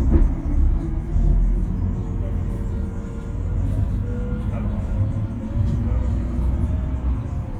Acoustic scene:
bus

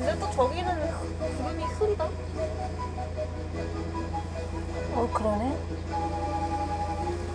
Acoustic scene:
car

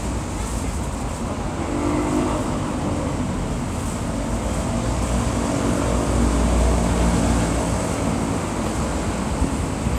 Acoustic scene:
street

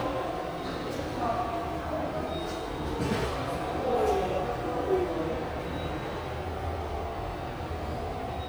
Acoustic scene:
subway station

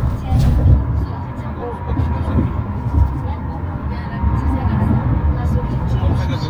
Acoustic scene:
car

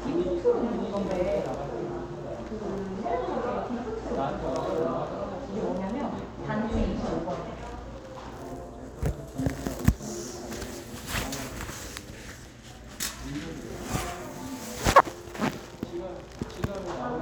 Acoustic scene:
crowded indoor space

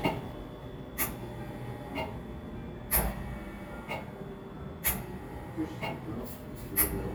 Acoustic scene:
cafe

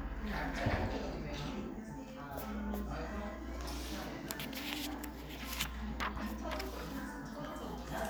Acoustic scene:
crowded indoor space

